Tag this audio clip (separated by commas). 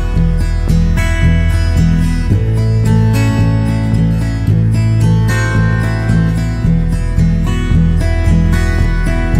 New-age music